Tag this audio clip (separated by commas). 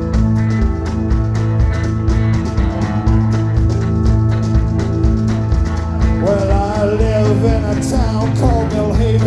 Music, Singing